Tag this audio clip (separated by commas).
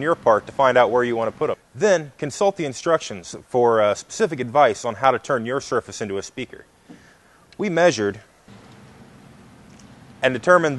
Speech